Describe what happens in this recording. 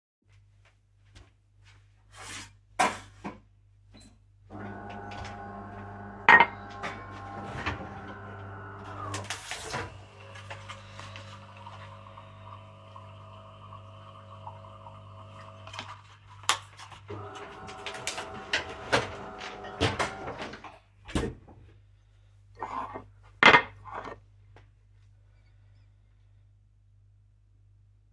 I walked to the coffee machine took my coffee and then powered it off. While the coffe machine is flushing i walk to the kitchen counter and place the coffee mug there. I open the fridge take the milk out, pour the milk in my coffee mug, put the milk back and close the fridge. Finally i slide the coffee mug to my right hand and pick it up.